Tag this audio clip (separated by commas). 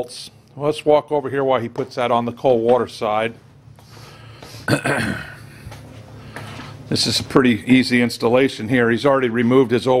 Speech